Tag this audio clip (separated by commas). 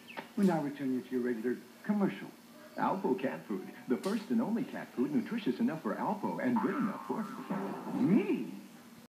Animal, Speech